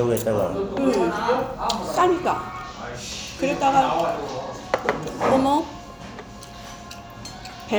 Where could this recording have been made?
in a restaurant